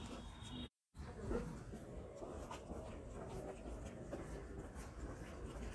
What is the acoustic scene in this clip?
residential area